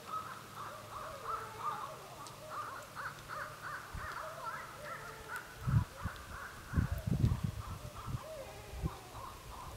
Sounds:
animal, bird, speech

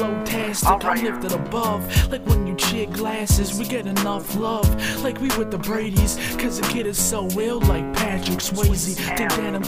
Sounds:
plucked string instrument, musical instrument, guitar, music

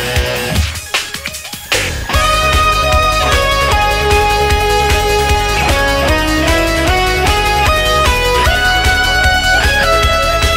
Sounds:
musical instrument, music

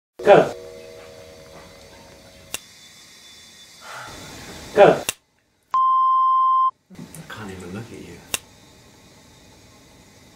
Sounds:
speech

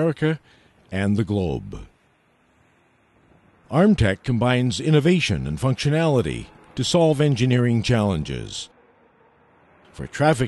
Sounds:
speech

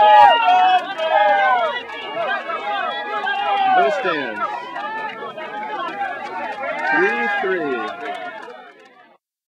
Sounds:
speech

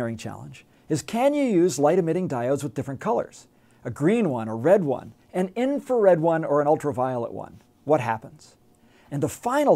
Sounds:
speech

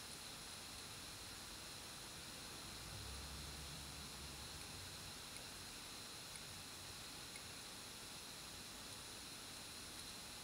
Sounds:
inside a small room

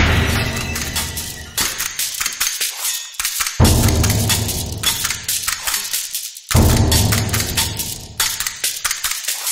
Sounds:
music

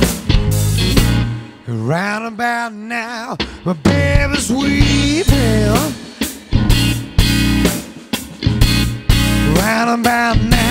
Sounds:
music

